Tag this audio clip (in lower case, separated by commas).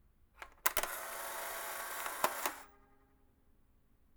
mechanisms, camera